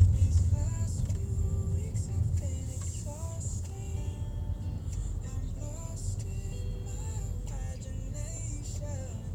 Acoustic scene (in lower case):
car